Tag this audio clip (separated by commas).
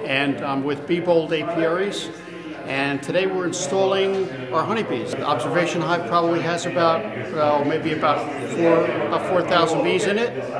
Speech